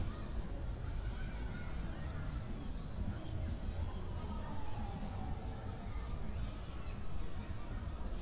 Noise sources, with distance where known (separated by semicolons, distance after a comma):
siren, far; person or small group talking